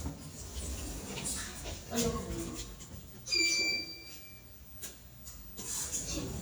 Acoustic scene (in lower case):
elevator